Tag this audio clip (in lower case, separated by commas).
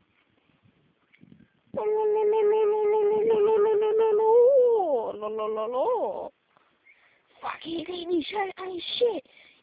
speech